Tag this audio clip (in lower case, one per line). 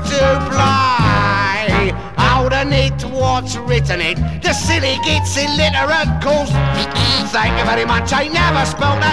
music